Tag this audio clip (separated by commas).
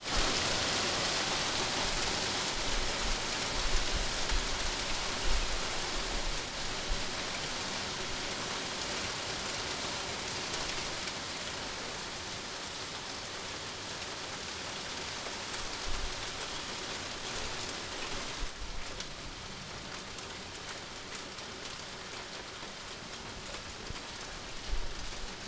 Water, Rain